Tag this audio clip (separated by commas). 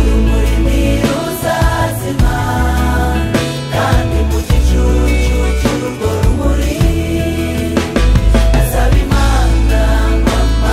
Music, Christian music